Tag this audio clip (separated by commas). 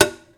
Tap